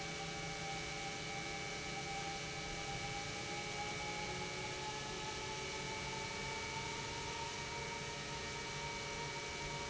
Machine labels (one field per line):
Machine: pump